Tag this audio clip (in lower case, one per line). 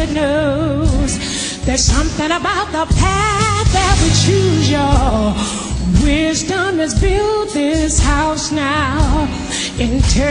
music